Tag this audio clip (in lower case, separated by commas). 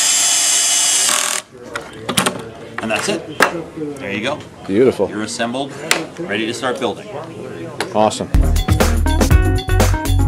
wood, music, tools, speech